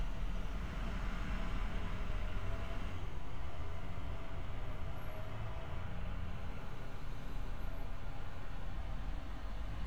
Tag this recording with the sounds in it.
large-sounding engine